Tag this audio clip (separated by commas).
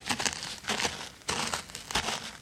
footsteps